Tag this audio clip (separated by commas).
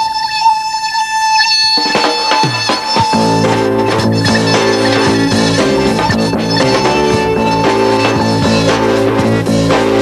Music